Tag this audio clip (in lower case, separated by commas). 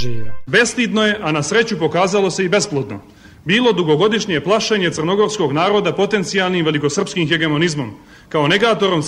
speech